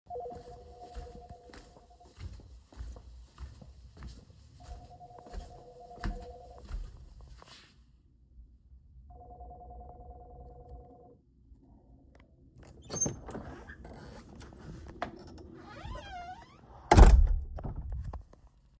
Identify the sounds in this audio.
phone ringing, footsteps, door